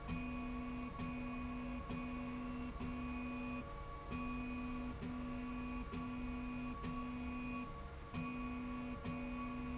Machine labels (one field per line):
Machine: slide rail